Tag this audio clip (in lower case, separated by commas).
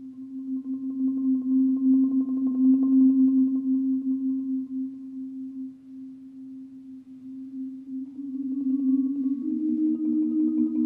marimba, percussion, musical instrument